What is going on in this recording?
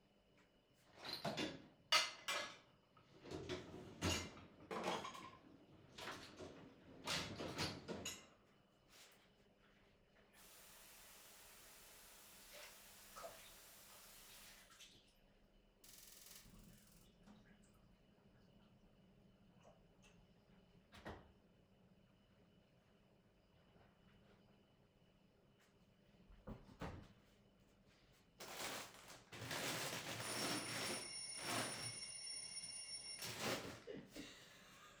People filing the dishwasher. Turning on the tapwater. Turning off the tapwater. Doorbell ringing